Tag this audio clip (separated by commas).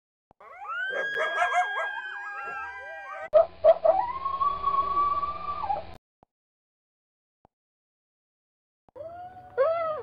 Sound effect